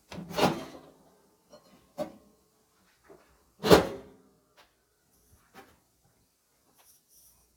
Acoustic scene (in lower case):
kitchen